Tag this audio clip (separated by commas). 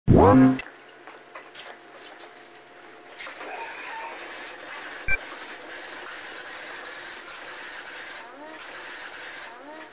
Speech